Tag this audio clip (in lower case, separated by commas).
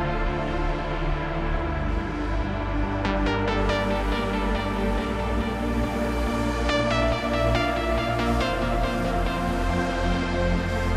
techno, music, electronic music